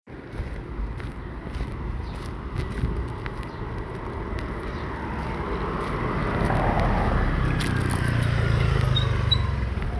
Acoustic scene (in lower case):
residential area